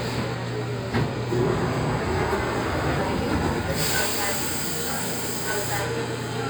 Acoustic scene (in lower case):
subway train